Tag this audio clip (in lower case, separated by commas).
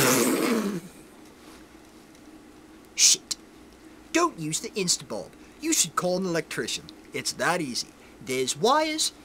speech, inside a small room